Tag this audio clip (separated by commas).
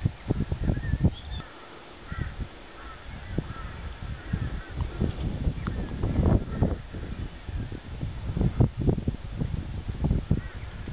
outside, rural or natural, Animal